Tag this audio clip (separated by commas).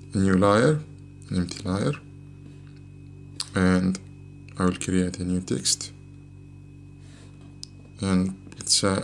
Speech